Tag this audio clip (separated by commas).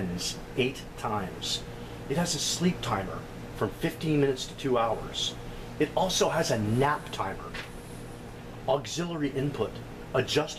Speech